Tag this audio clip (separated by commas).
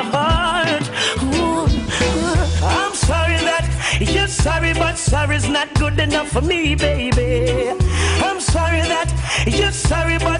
Music